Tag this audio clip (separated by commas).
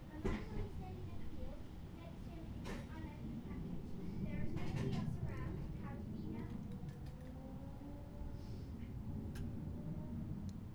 Speech, Human voice, kid speaking